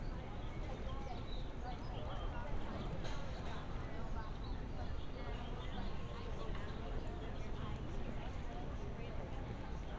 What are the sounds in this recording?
person or small group talking